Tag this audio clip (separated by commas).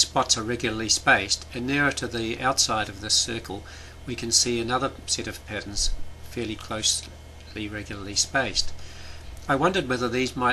Speech